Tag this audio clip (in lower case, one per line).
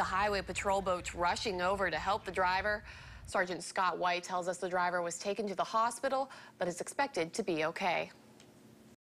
speech